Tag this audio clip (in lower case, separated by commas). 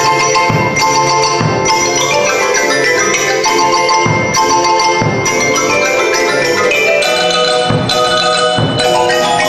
percussion, music